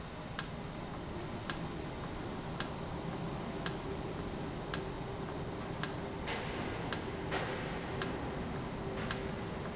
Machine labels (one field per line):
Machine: valve